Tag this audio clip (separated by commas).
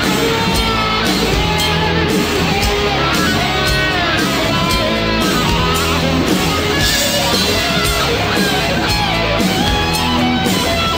Heavy metal